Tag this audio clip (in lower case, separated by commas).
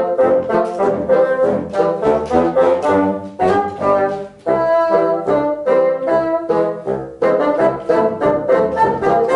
playing bassoon